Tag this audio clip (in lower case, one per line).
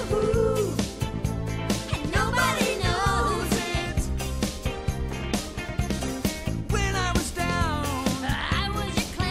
music